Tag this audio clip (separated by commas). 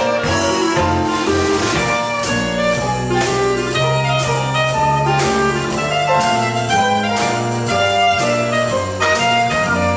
Piano, Keyboard (musical), Orchestra